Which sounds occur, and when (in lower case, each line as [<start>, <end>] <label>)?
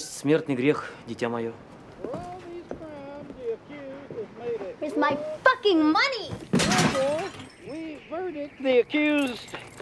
[0.00, 0.91] male speech
[0.00, 9.81] background noise
[0.71, 0.99] breathing
[1.04, 1.51] male speech
[1.74, 1.79] tick
[1.85, 1.92] tick
[1.92, 5.19] male speech
[1.98, 2.13] footsteps
[2.64, 2.79] footsteps
[3.19, 3.29] footsteps
[4.03, 4.14] footsteps
[4.51, 4.63] footsteps
[4.79, 5.19] woman speaking
[5.42, 6.31] woman speaking
[6.27, 6.42] generic impact sounds
[6.52, 7.30] male speech
[6.53, 7.85] generic impact sounds
[7.60, 7.98] male speech
[8.08, 8.45] male speech
[8.57, 8.82] male speech
[8.92, 9.40] male speech
[8.99, 9.81] generic impact sounds